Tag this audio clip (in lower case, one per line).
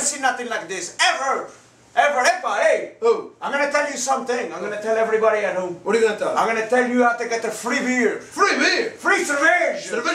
speech